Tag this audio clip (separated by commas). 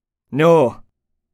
Speech, Male speech, Human voice